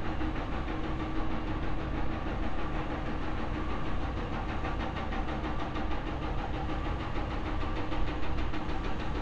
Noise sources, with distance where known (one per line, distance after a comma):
unidentified impact machinery